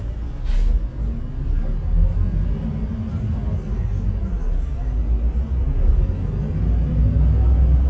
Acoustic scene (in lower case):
bus